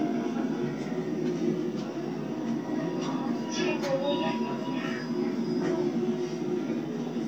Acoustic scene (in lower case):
subway train